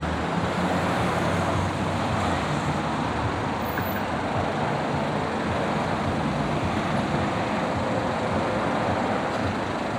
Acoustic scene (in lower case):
street